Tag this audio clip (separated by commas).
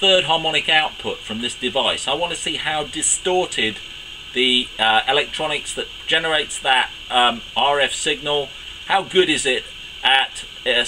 Speech